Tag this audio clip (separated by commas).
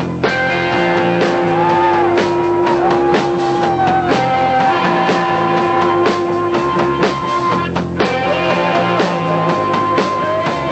Independent music, Music